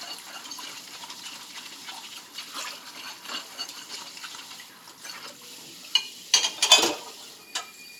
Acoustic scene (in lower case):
kitchen